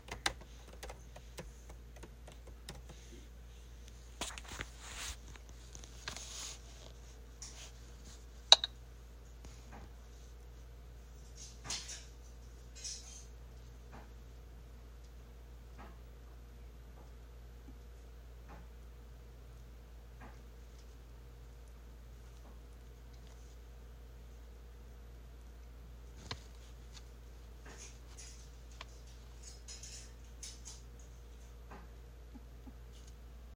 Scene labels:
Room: living room, kitchen; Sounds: keyboard typing, cutlery and dishes

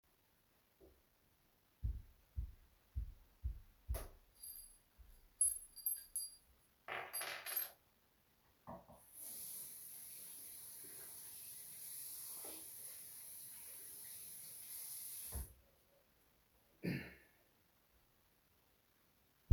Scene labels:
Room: hallway, bathroom; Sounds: footsteps, light switch, keys, running water

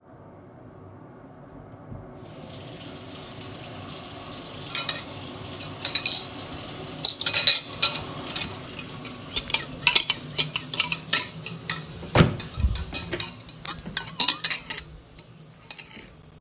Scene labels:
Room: kitchen; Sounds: running water, cutlery and dishes, door

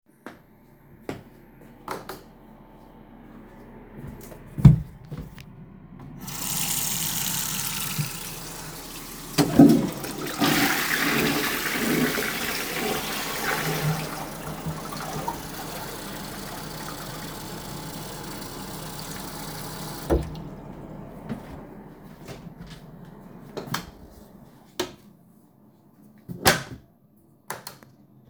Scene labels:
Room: bathroom, living room; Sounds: footsteps, light switch, running water, toilet flushing, door

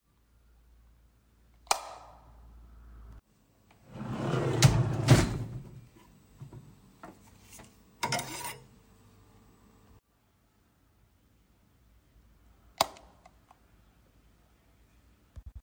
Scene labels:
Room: kitchen; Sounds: light switch, wardrobe or drawer

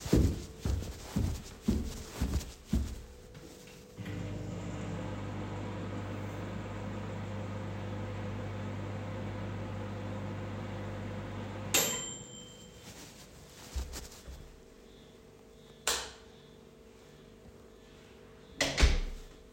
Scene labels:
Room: kitchen; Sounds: footsteps, microwave, light switch, door

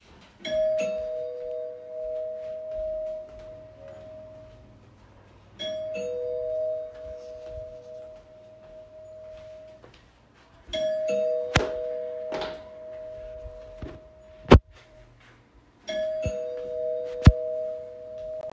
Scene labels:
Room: hallway; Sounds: bell ringing, footsteps

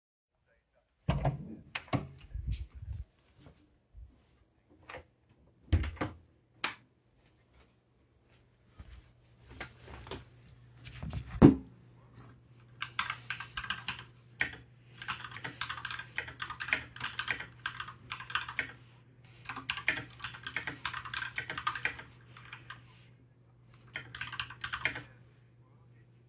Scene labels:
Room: bedroom; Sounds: door (more than once), light switch, footsteps, keyboard typing

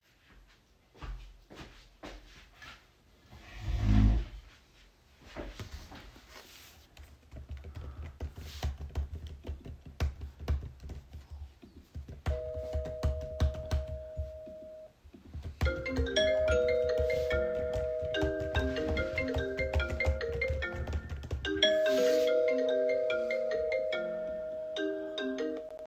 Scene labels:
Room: kitchen; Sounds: footsteps, keyboard typing, bell ringing, phone ringing

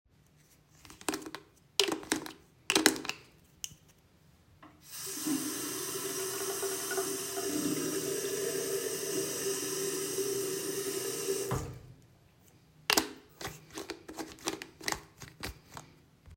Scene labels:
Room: bathroom; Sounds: running water

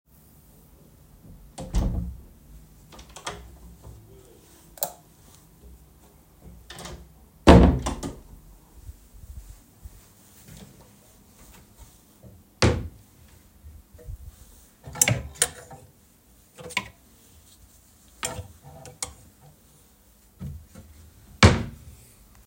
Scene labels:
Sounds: door (more than once), light switch, wardrobe or drawer (more than once)

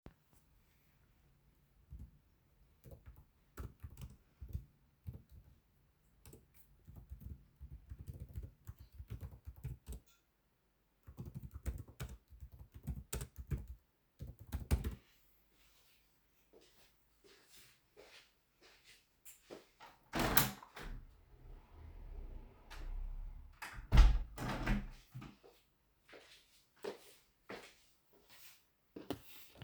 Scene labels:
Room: living room; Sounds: keyboard typing, footsteps, window (more than once)

